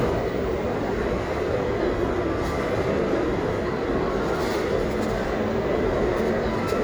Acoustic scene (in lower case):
crowded indoor space